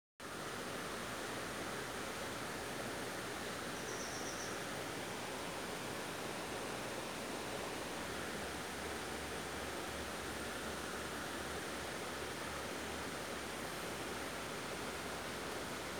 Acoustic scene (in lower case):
park